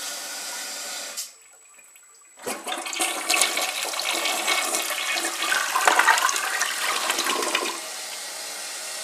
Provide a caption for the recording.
Whooshing noise then a toilet flushing